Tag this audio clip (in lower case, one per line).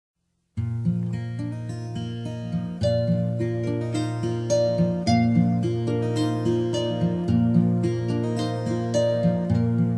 harp